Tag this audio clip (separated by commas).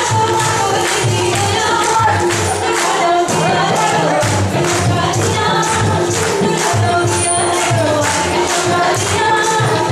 Singing